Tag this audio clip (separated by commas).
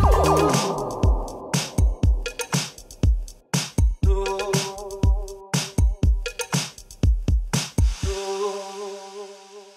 Drum machine